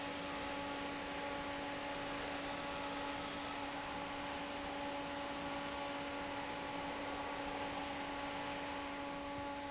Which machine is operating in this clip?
fan